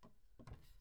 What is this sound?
wooden cupboard opening